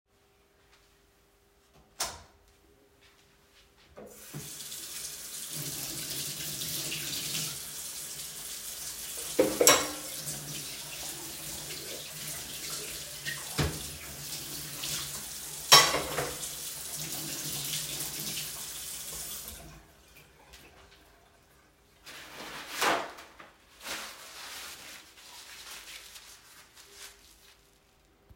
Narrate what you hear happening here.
I turned on the lights and opened the tap. While the water was running, I searched my glass, but it was dirty, so I cleaned it. After cleaning it, I put it on the drying rack and stopped the tap. I used paper towel to dry my hands.